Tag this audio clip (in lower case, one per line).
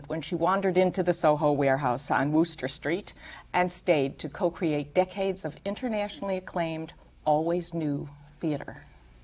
woman speaking
speech